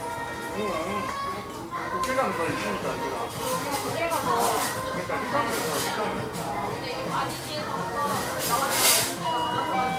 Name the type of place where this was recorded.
restaurant